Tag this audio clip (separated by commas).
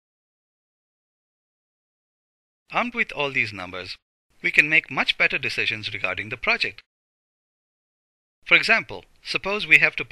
Speech, Silence